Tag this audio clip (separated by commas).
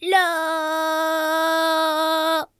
Female singing, Singing, Human voice